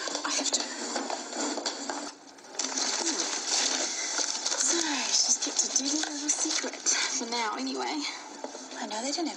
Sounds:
speech
inside a small room

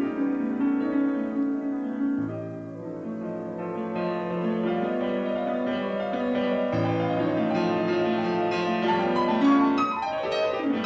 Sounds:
keyboard (musical)
piano
music
musical instrument

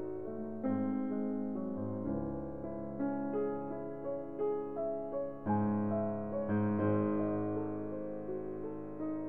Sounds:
music
background music

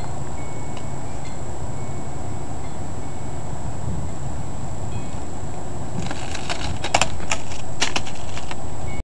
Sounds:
breaking

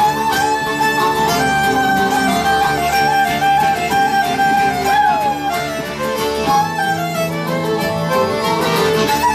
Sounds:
harmonica
wind instrument

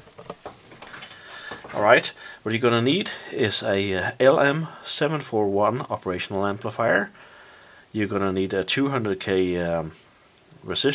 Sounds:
speech

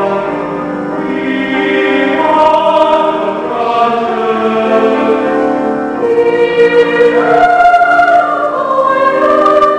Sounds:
female singing
music
choir
male singing

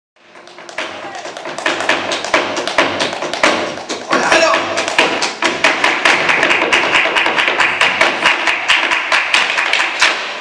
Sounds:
speech
tap

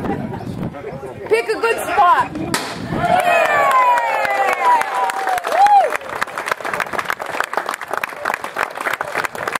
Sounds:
speech

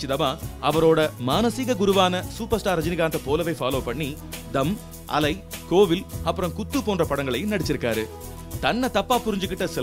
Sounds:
music
speech

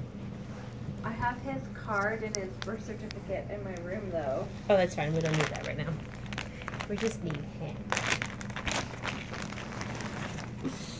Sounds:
speech

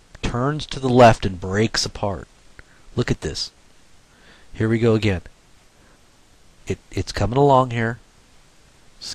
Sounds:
speech

